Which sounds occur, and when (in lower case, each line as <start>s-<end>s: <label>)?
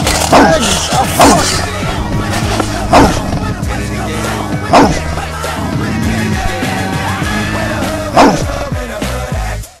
0.0s-9.8s: music
0.3s-1.6s: human sounds
1.4s-9.8s: male singing
2.9s-3.2s: human sounds
4.7s-5.0s: human sounds
8.1s-8.4s: human sounds